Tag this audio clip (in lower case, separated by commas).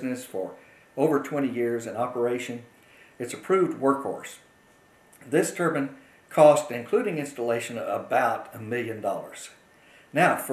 speech